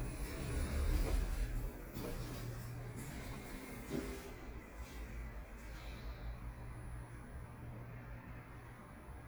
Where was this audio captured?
in an elevator